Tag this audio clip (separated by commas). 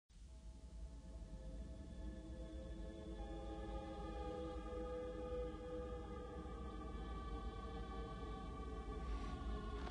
Silence